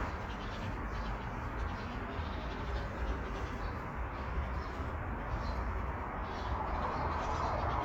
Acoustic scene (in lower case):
residential area